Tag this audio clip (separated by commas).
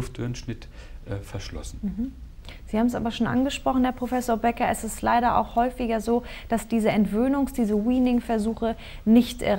Speech, Conversation